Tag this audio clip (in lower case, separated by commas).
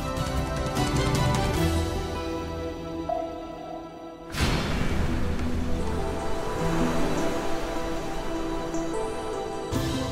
vehicle, water vehicle, music